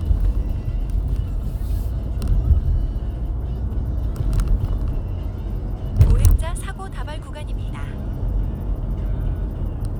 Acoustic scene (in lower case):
car